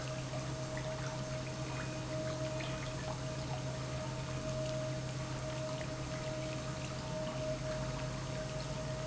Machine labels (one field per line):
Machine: pump